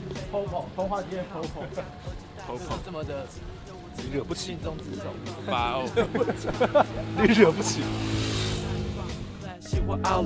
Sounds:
music, speech

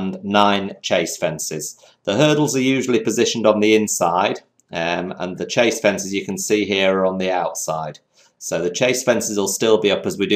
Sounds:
speech

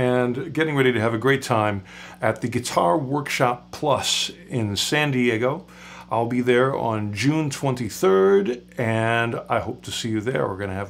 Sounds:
speech

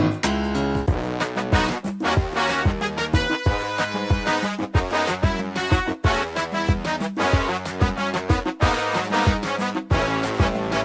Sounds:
playing synthesizer

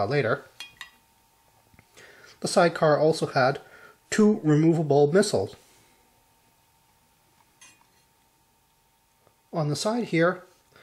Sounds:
speech

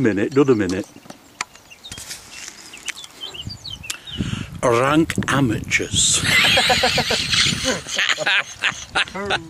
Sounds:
speech

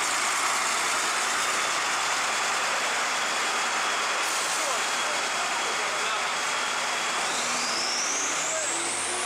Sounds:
speech, vroom, vehicle, accelerating

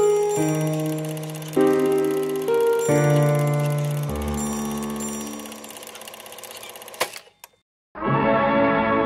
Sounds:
music

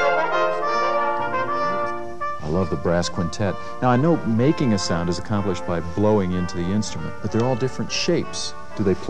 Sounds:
speech, music

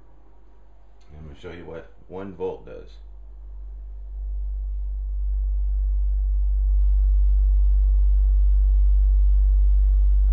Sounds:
inside a small room, speech

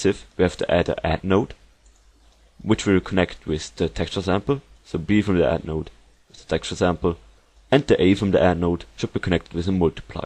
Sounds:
speech

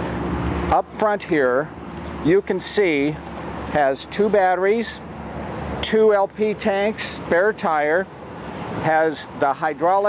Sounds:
speech

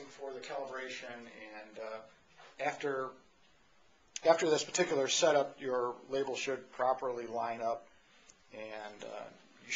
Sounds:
speech

